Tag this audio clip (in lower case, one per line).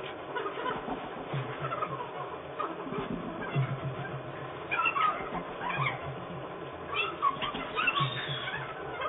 music